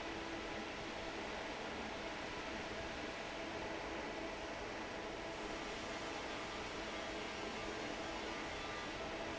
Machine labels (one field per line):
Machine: fan